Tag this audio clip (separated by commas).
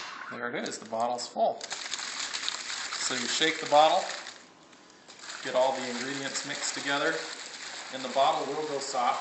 Water